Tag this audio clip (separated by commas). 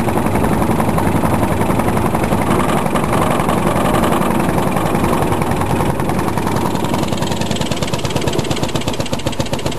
Boat, Vehicle